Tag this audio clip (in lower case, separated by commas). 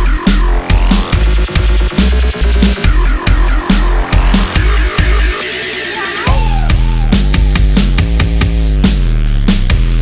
dubstep, music